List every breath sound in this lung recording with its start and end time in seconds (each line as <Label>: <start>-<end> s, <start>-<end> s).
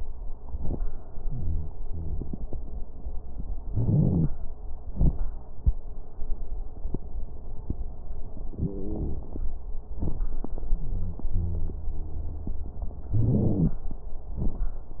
Inhalation: 3.66-4.26 s, 13.11-13.76 s
Exhalation: 4.86-5.22 s, 14.33-14.74 s
Wheeze: 1.19-1.69 s, 1.86-2.36 s, 10.71-11.23 s, 11.35-12.65 s
Crackles: 3.66-4.26 s, 4.86-5.22 s, 13.11-13.76 s, 14.33-14.74 s